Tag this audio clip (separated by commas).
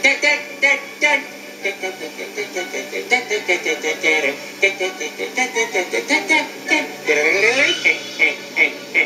Music, Exciting music